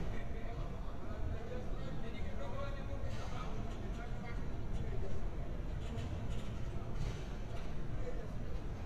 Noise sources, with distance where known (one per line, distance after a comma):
person or small group talking, near